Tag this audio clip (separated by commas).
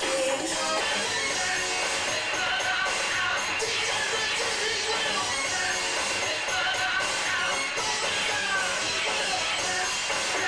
Music